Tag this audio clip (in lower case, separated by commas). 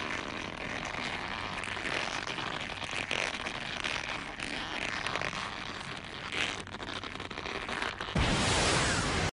zipper (clothing)